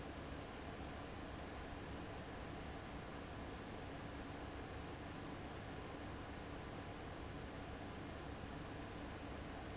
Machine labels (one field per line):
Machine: fan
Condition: abnormal